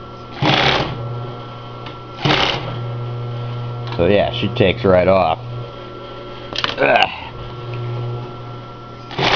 A man speaks and uses a sewing machine